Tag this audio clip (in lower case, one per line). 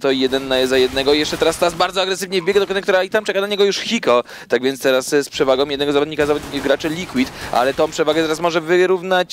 speech